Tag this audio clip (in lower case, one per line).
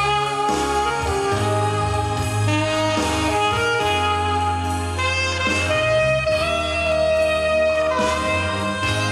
playing saxophone